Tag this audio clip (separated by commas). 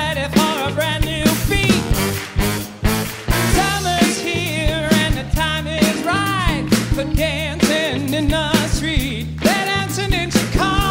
Music